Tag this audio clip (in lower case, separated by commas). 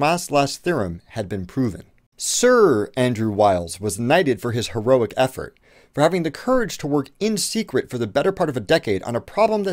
speech